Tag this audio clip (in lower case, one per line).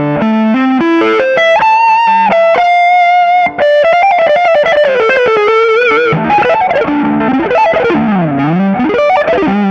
electric guitar
effects unit
musical instrument
plucked string instrument
guitar
music